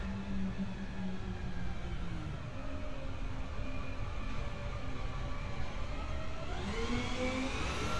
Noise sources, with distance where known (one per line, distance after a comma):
medium-sounding engine, near